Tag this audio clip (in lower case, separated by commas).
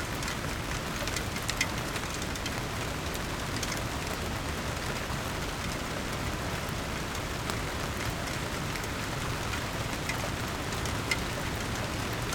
rain, water